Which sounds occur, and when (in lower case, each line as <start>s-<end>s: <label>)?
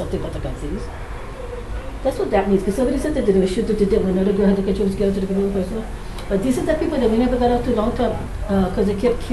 0.0s-0.9s: woman speaking
0.0s-9.3s: mechanisms
0.9s-2.0s: speech
2.0s-5.9s: woman speaking
6.1s-6.3s: tick
6.3s-8.3s: woman speaking
8.4s-8.5s: tick
8.4s-9.3s: woman speaking